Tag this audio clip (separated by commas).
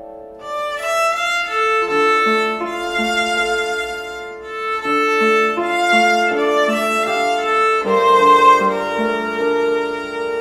Musical instrument, Music, fiddle